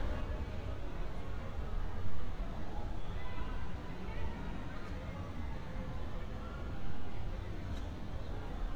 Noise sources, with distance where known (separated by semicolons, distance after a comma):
person or small group shouting, far